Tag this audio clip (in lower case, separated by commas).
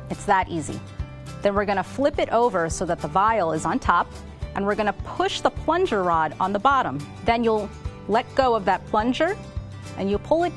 speech, music